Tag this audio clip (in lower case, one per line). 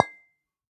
glass
chink